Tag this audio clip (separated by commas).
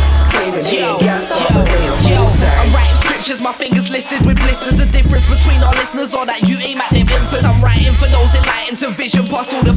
Music